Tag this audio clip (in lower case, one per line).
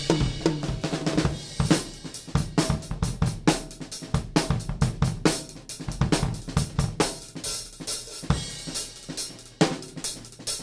cymbal
percussion
bass drum
drum kit
hi-hat
music
drum
snare drum
musical instrument